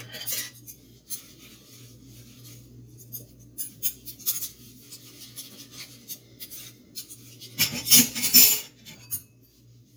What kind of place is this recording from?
kitchen